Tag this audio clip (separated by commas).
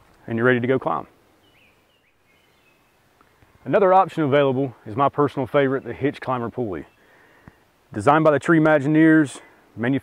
Environmental noise